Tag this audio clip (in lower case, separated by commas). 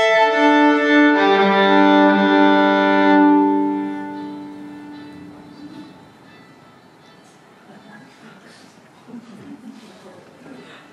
music